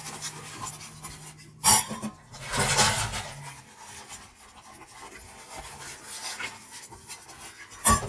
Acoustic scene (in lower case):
kitchen